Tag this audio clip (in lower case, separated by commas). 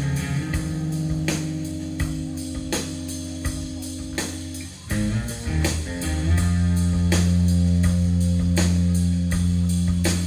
music, steel guitar